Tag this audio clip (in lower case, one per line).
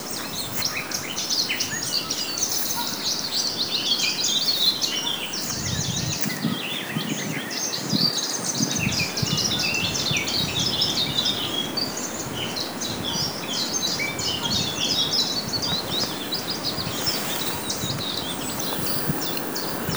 bird vocalization
animal
wild animals
bird